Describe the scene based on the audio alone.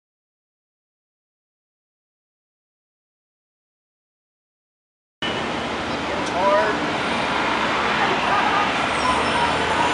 People chatter as vehicles move in the background